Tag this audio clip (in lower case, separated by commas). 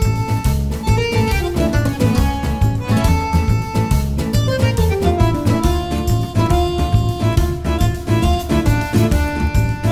music